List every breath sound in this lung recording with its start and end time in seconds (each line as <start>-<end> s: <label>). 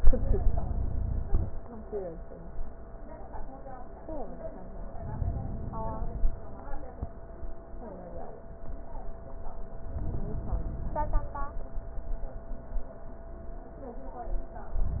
4.96-6.38 s: inhalation
9.91-11.32 s: inhalation